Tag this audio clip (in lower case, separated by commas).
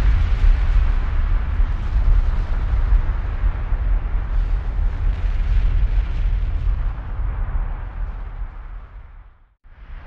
volcano explosion